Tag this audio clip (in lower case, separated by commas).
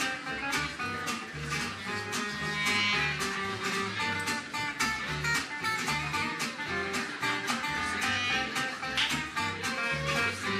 middle eastern music, jazz, music